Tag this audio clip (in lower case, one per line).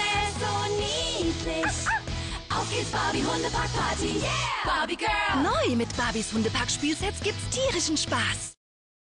music
speech